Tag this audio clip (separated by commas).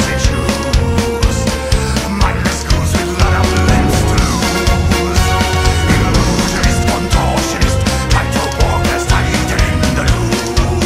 Music